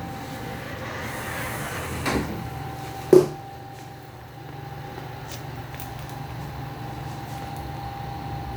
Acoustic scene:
elevator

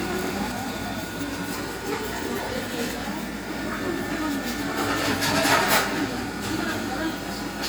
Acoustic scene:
cafe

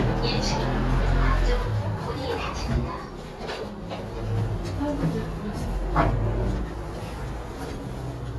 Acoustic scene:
elevator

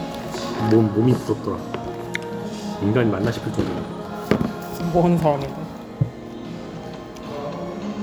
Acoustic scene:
cafe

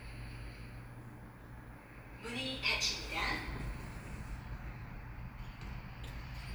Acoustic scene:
elevator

